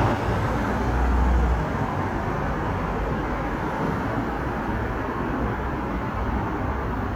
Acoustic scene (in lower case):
street